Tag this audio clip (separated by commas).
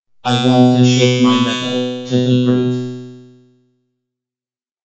Speech, Speech synthesizer, Human voice